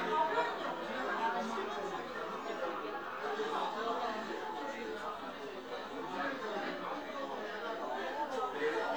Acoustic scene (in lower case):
crowded indoor space